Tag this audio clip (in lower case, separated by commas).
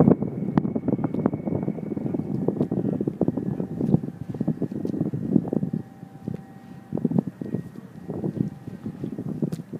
wind noise (microphone), wind